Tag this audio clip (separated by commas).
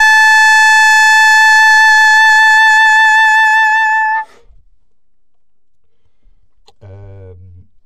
woodwind instrument, Music, Musical instrument